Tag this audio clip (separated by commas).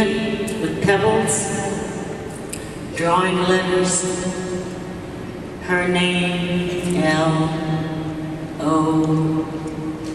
woman speaking, monologue, Speech